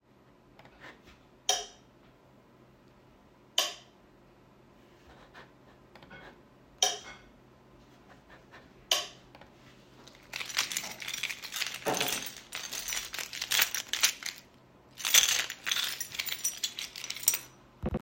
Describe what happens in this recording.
I turn on the lightswitch a few times before jiggling my keychain. The sound of the light switch clicking and the jingling of the keychain were recorded in the hallway without any background noise.